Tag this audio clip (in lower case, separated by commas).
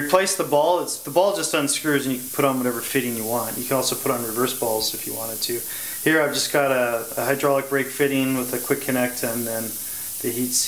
speech